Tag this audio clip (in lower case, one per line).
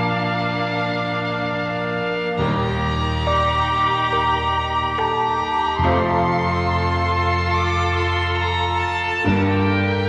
music
background music